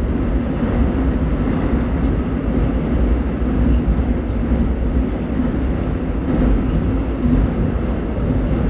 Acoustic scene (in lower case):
subway train